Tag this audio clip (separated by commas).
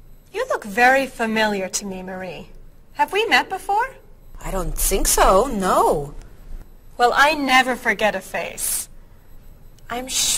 Conversation, Speech